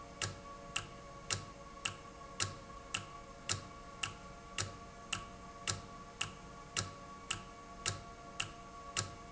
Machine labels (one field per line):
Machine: valve